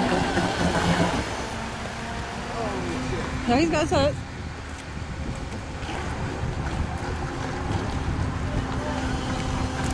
A motor running with a lady and man speaking